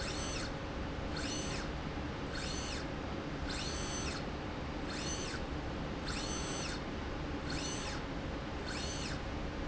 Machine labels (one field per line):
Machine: slide rail